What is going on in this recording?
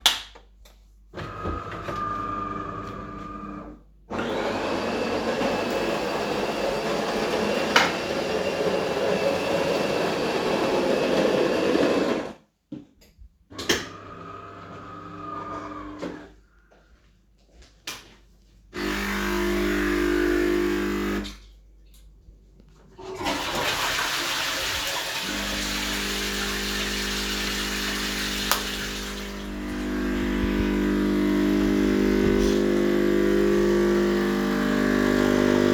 while the coffee machine was brewing a cup of coffe I went to the bathroom, turned on the light, opened the door and flushed some dish water, turned the light off again and closed the door